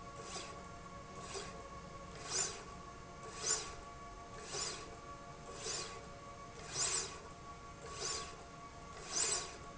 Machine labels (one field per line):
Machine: slide rail